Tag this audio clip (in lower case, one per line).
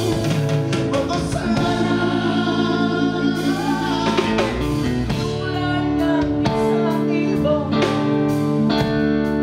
singing
music